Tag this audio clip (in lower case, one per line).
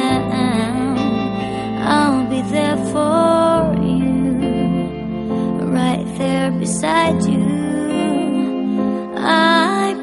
music